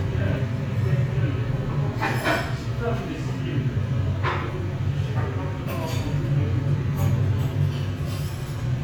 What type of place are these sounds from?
restaurant